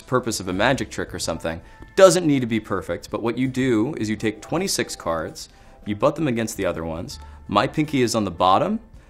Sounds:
Music, Speech

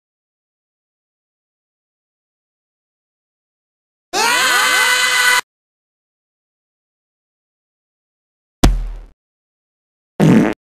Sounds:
Sound effect

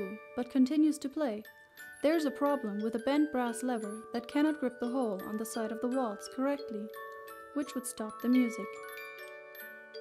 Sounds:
Speech, Music

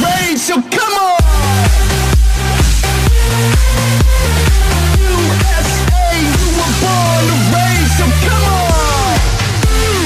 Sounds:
Music, Speech

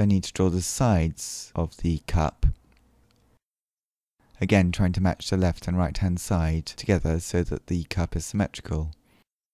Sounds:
Speech

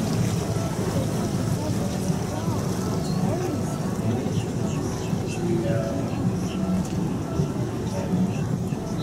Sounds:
Wind, Wind noise (microphone)

